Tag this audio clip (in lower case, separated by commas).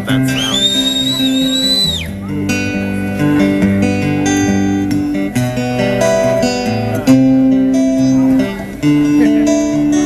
speech, music